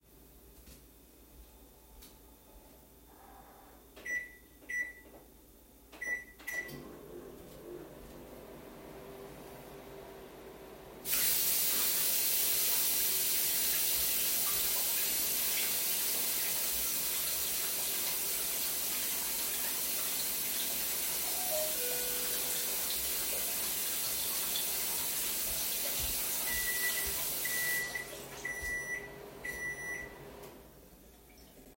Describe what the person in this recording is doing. I was running the microwave and rinsing the cutlery suddenly door bell rang